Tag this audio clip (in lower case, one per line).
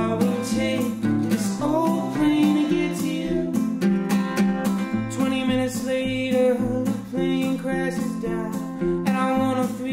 music